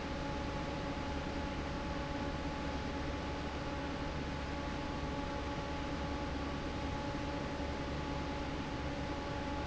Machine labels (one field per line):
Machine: fan